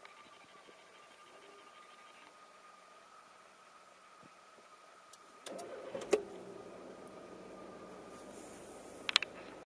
An engine struggles to start initially but eventually starts up and idles